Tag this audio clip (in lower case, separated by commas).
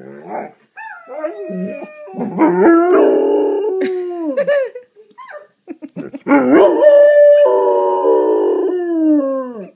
domestic animals, animal, dog, growling